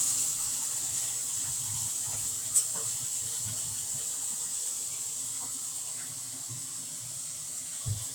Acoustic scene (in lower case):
kitchen